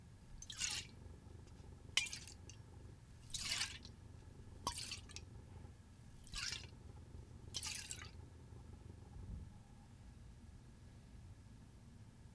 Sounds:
Liquid

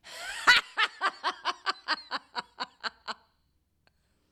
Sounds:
Laughter, Human voice

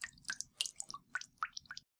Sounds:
Liquid, Drip

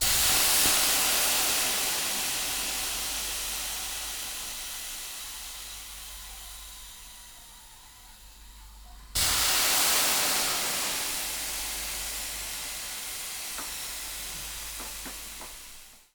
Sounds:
Hiss

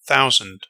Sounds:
Human voice, Male speech, Speech

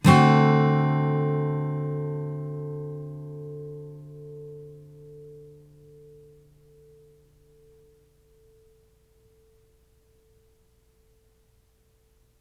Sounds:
Music, Musical instrument, Strum, Plucked string instrument, Guitar

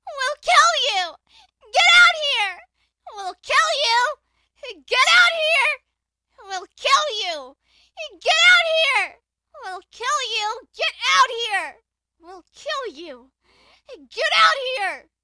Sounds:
Human voice, Yell, Shout

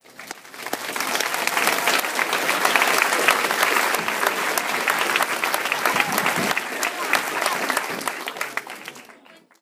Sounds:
Human group actions, Applause

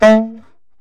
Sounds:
Musical instrument, Wind instrument, Music

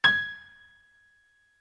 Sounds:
Music, Musical instrument, Piano, Keyboard (musical)

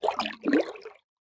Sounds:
Splash, Liquid

